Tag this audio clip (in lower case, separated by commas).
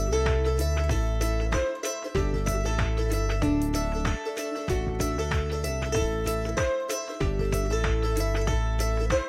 music